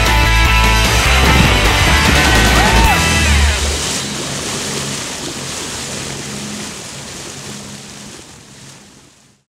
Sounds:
Music

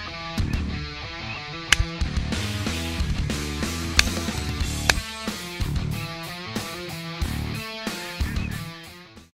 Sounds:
Music, Animal, Quack

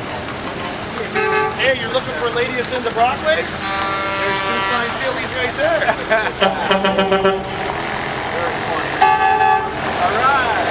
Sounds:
Car, Vehicle, Speech, Truck

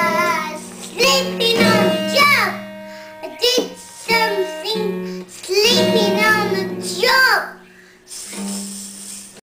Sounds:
Guitar, Musical instrument, Music, Child singing, Plucked string instrument

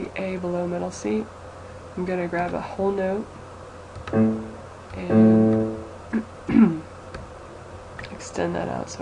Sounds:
Speech

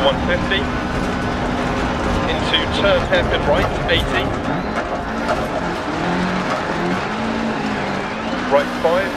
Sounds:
Speech

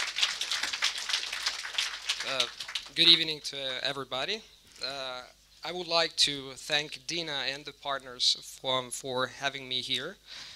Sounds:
Speech, man speaking, Narration

